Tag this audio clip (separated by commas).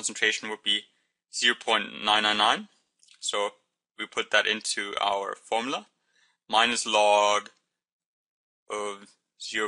Speech